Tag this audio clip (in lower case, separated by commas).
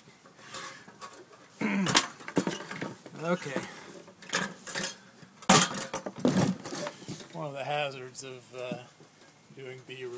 speech